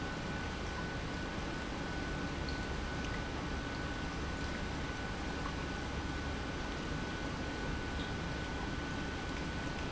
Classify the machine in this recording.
pump